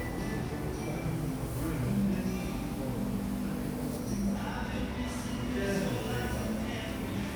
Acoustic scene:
cafe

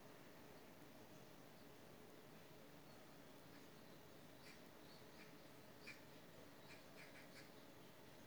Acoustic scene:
park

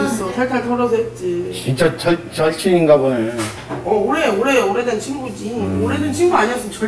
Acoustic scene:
crowded indoor space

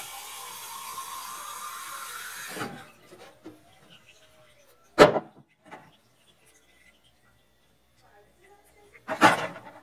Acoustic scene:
kitchen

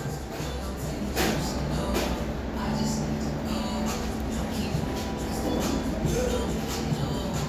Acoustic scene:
cafe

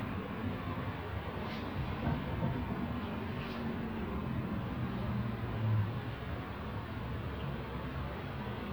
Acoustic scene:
residential area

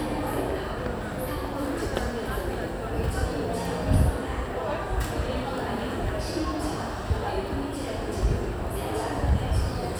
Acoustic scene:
crowded indoor space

